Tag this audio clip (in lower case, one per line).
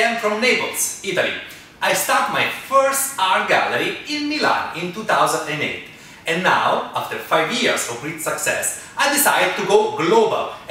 speech